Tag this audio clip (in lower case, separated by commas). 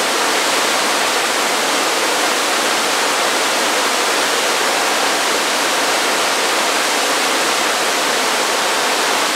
waterfall burbling